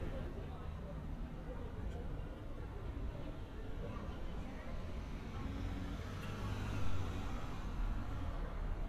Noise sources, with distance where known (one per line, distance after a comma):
medium-sounding engine
unidentified human voice